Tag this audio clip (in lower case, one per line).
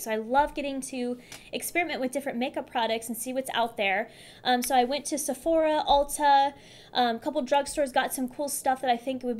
speech